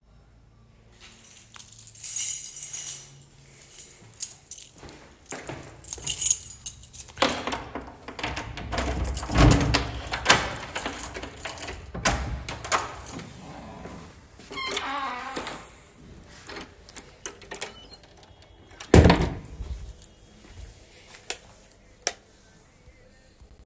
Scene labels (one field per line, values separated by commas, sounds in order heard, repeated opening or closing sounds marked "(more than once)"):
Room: hallway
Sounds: keys, footsteps, door (more than once), light switch